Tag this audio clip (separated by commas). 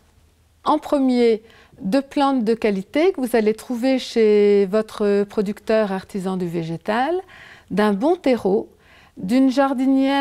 Speech